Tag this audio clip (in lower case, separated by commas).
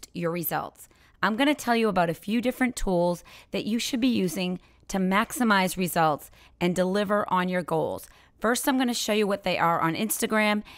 speech